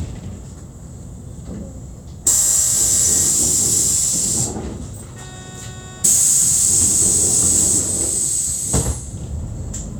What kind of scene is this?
bus